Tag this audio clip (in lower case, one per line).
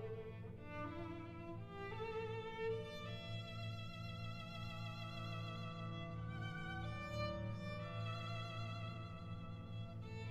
musical instrument
music
fiddle